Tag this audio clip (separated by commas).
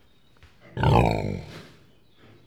livestock, Animal